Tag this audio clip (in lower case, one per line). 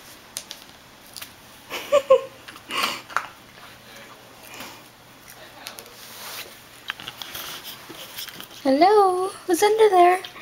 speech